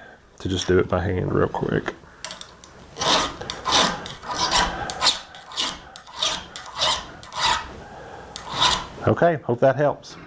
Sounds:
inside a small room
speech

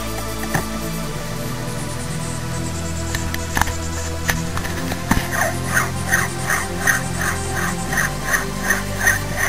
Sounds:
music

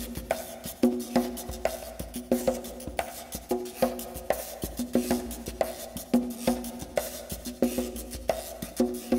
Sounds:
wood block
music
percussion

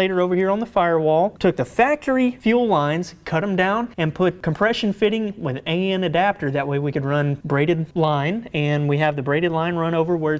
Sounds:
speech

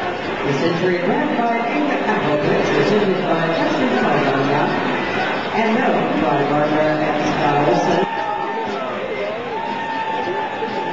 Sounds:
speech

